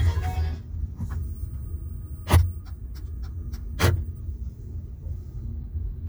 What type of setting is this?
car